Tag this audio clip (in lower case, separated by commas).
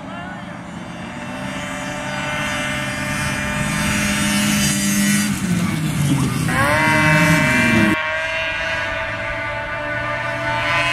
driving snowmobile